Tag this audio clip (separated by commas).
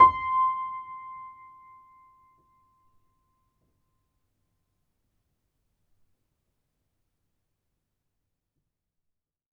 Musical instrument, Piano, Music, Keyboard (musical)